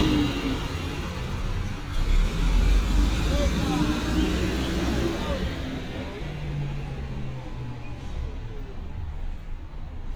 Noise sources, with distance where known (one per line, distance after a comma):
large-sounding engine, near
person or small group talking, near